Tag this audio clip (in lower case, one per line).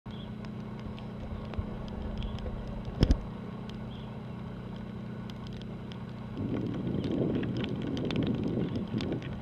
boat
ship
vehicle